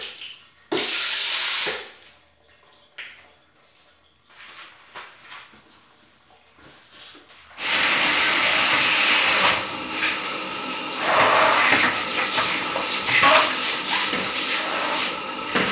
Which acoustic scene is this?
restroom